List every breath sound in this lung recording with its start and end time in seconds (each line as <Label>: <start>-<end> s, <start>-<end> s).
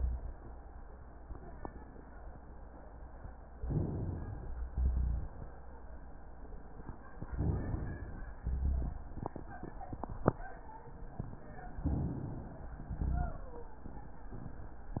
Inhalation: 3.56-4.60 s, 7.27-8.28 s, 11.84-12.79 s
Exhalation: 4.71-5.48 s, 8.40-9.10 s, 12.84-13.71 s
Rhonchi: 3.56-4.60 s, 4.71-5.48 s, 7.27-8.28 s, 8.40-9.10 s, 11.84-12.79 s, 12.84-13.71 s